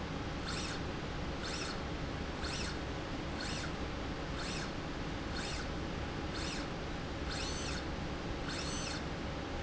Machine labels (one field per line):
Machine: slide rail